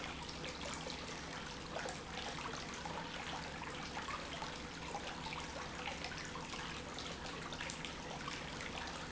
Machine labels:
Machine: pump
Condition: normal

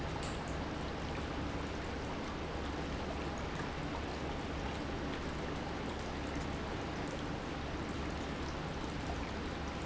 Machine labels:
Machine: pump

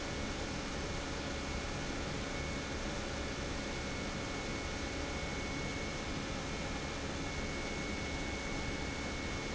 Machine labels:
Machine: pump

